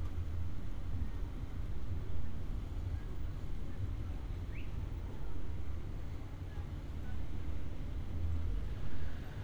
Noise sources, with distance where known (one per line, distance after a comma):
unidentified human voice